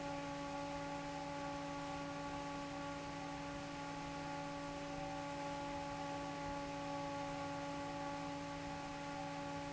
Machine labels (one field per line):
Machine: fan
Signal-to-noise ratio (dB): 6 dB